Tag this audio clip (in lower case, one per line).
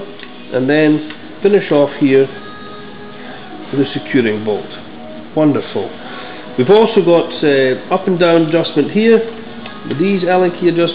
music
speech